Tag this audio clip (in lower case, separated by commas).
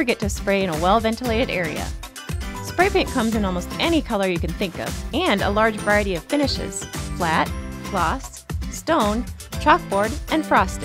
speech, music